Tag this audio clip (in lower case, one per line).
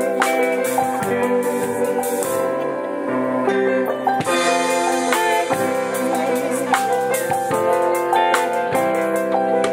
soul music
music